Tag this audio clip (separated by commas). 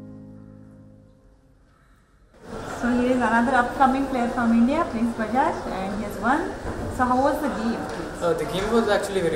Music, Speech